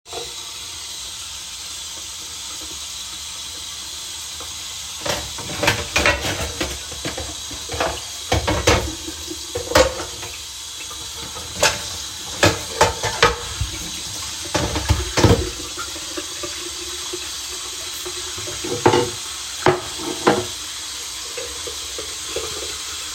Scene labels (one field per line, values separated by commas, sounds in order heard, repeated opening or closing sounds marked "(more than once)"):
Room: bedroom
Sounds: running water, cutlery and dishes